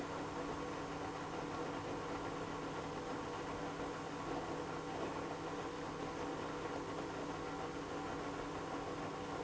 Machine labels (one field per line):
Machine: pump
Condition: abnormal